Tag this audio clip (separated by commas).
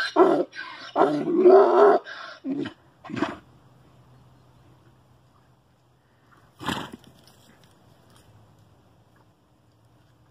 donkey